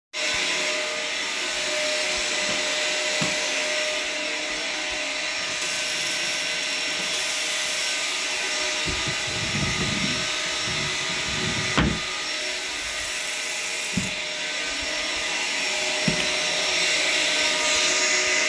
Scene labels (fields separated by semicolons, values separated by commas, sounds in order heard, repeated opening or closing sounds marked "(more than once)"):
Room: bathroom; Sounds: vacuum cleaner, running water, wardrobe or drawer (more than once)